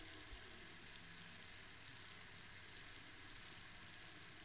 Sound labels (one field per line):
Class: water tap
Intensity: high